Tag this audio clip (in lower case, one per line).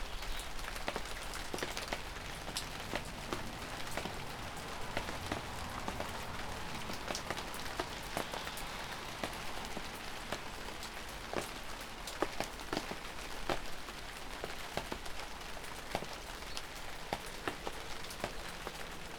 rain
water